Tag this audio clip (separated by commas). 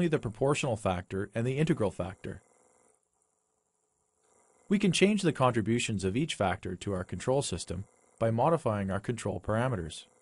Speech